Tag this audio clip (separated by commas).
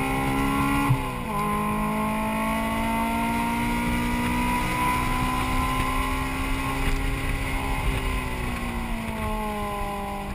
Car passing by